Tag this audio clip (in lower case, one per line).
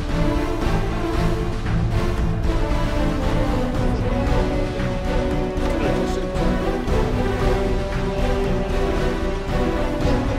music
speech